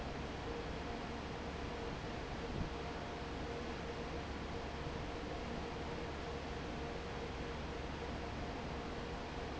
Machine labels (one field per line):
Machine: fan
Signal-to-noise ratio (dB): 0 dB